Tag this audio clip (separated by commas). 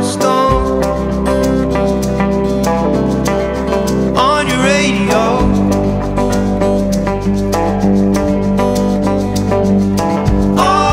Music, Country